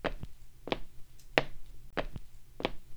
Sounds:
walk

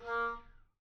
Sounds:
music
musical instrument
wind instrument

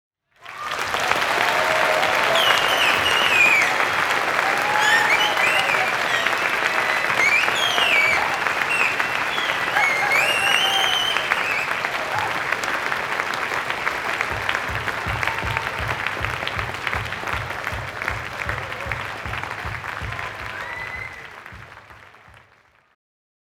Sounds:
human group actions
applause

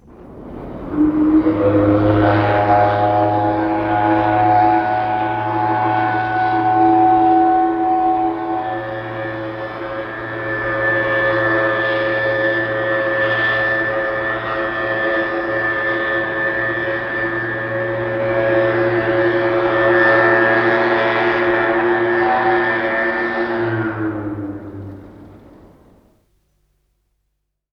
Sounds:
alarm

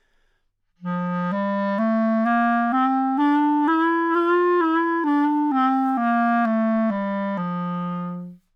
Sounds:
music
musical instrument
woodwind instrument

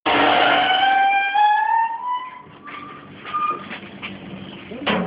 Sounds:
squeak

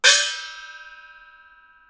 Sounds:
percussion
gong
musical instrument
music

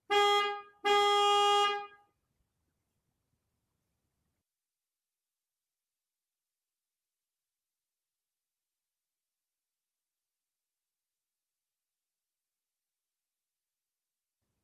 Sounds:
motor vehicle (road)
vehicle
car horn
car
alarm

